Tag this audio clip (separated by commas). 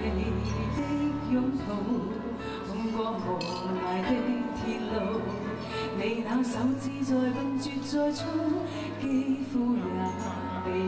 Female singing, Music